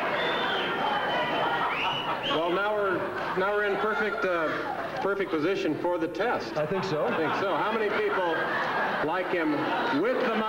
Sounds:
Male speech

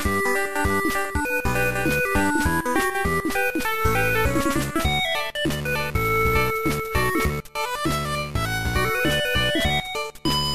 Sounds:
Music

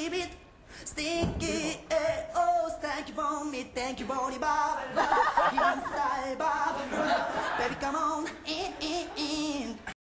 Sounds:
Speech

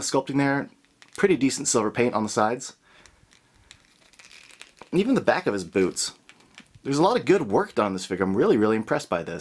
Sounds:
Speech, inside a small room

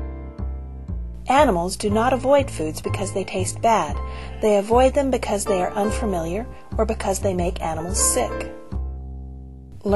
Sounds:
Speech, livestock, Goat, Animal, Music, Sheep

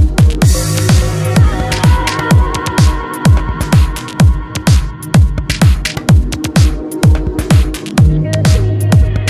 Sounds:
Music, Electronica

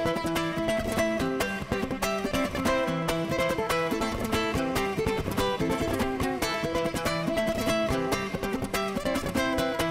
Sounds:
playing ukulele

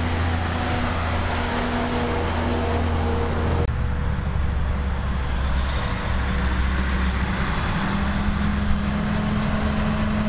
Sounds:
Truck, Vehicle

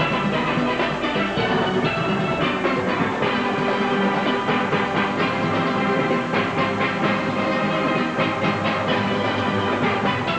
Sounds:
playing steelpan

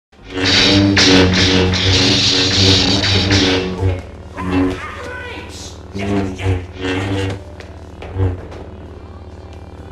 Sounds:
Speech, Music

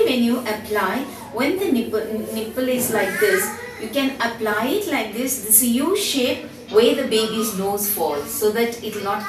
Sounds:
Speech

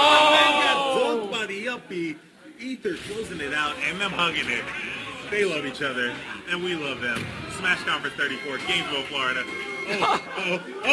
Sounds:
Speech, Music

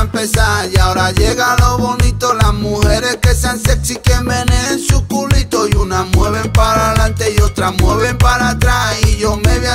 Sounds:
Music, Music of Africa, Music of Latin America, Flamenco

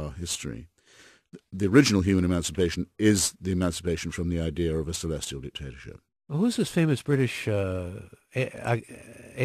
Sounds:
Speech

